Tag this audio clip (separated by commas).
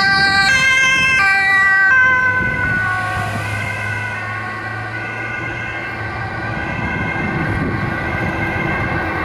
Motorcycle